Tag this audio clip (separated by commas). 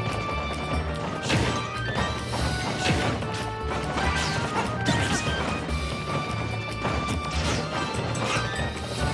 thwack